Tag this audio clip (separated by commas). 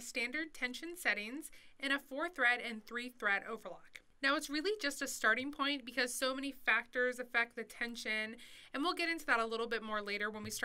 Speech